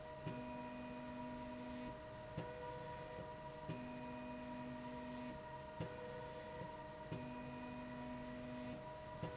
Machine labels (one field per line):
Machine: slide rail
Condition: normal